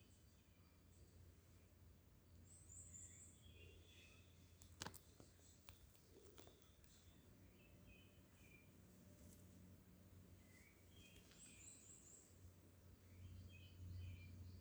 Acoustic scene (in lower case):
park